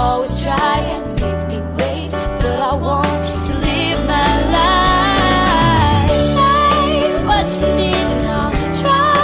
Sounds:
Music

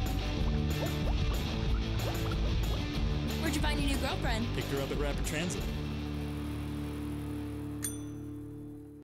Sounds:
Vehicle, Speech, Music, Bicycle

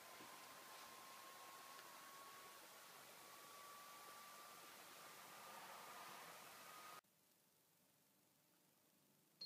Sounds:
Mallet percussion, xylophone, Glockenspiel

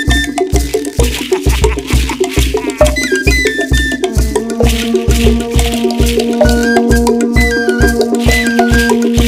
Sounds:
Music, Folk music

